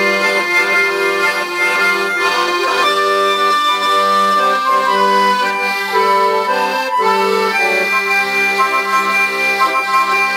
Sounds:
music

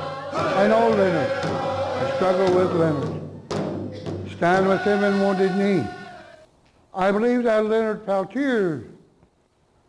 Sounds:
speech, music

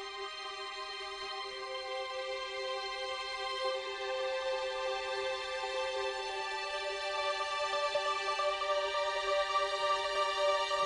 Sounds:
theme music, music

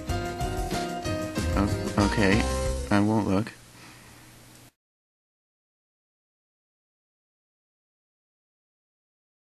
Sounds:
music, funny music, speech

